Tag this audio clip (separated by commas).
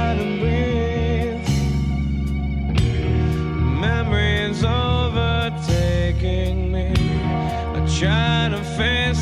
Singing